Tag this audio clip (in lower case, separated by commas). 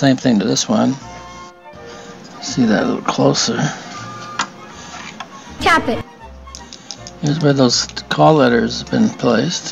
speech, music